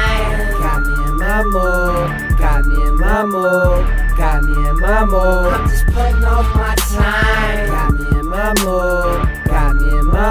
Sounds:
music, pop music

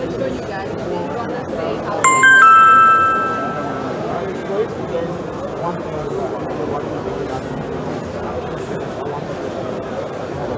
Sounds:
speech

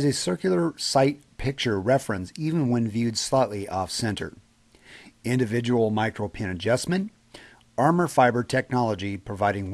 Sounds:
speech

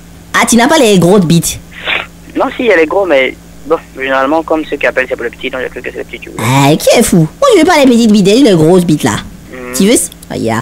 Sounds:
speech

